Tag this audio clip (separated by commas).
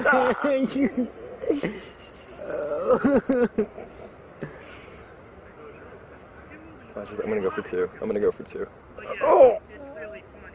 Speech